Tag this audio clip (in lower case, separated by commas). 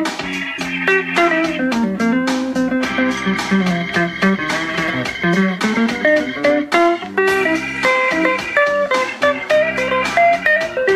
music